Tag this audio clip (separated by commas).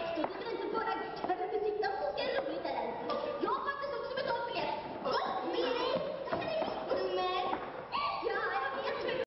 Speech